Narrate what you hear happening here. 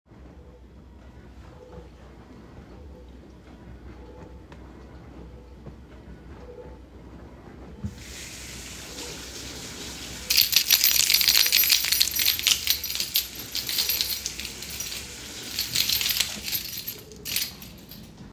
With the dishwasher running in the background, I simultaneously turned on the tap, washed dishes, and jingled my keys.